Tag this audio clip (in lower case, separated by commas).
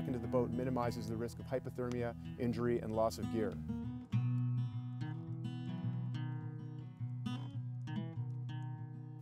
music, speech